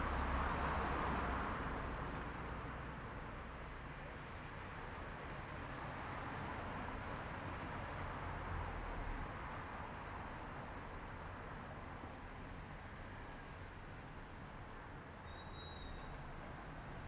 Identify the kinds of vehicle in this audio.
car